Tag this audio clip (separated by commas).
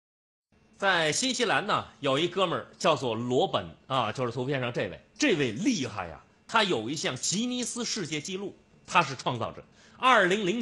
Narration, Speech